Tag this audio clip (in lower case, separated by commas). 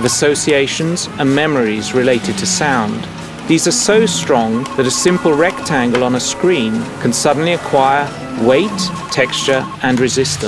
speech, music